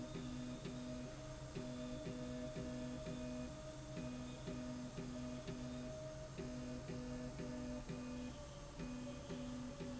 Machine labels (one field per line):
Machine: slide rail